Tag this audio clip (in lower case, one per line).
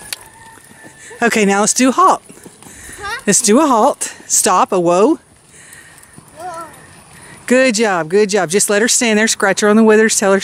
speech
clip-clop
horse
animal